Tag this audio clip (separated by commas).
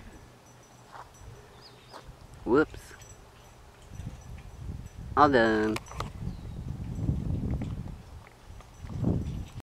Vehicle, Speech